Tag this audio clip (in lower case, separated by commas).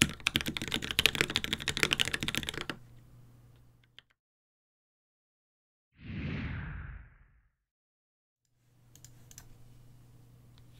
typing on computer keyboard